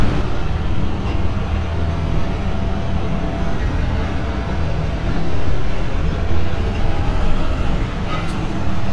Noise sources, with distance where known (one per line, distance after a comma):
engine of unclear size